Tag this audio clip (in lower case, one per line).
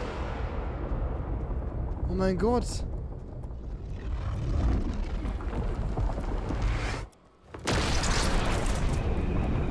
missile launch